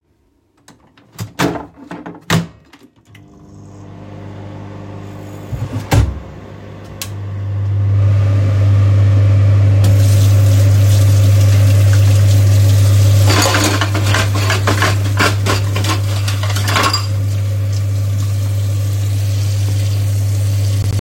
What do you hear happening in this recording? I turned on the kitchen hood and the microwave. While the microwave was running I handled cutlery and dishes. All sounds overlapped during the recording.